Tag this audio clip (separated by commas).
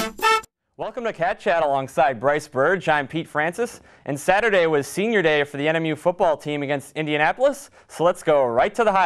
Speech, Music